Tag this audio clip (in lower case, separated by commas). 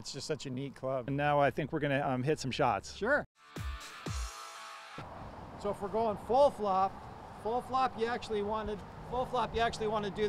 music, speech